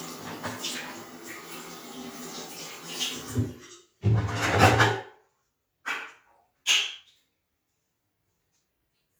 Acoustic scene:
restroom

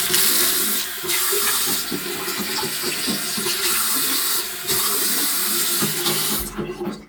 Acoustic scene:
restroom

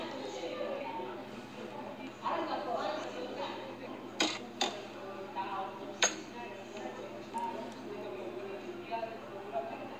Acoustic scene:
cafe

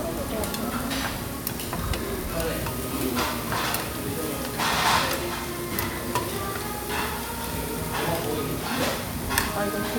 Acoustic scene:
restaurant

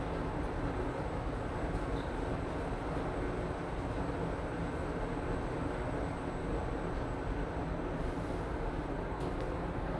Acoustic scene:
elevator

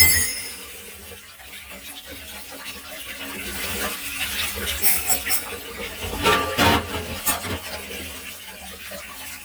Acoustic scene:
kitchen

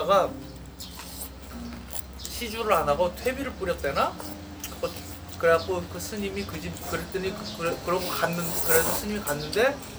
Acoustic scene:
restaurant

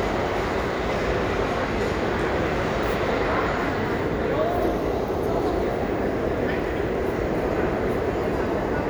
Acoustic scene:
crowded indoor space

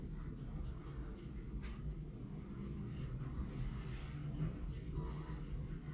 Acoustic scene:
elevator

